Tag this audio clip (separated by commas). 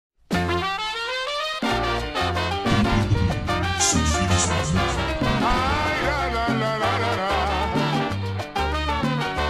Music of Latin America, Music, Salsa music